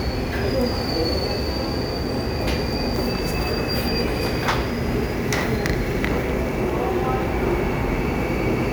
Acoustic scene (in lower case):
subway station